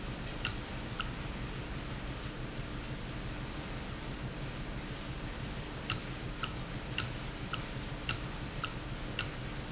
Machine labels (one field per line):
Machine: valve